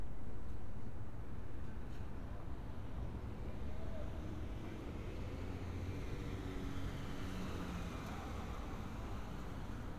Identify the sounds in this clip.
medium-sounding engine